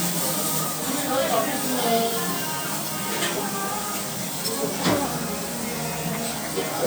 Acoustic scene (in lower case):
restaurant